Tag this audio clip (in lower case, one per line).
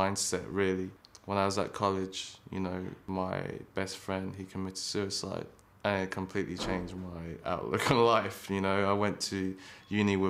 speech